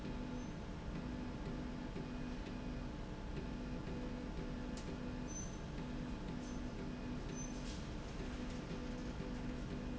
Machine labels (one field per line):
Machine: slide rail